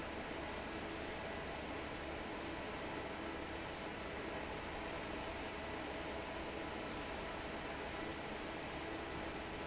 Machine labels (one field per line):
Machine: fan